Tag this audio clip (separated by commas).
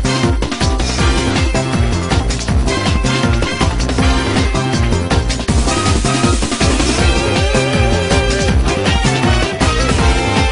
Music, Video game music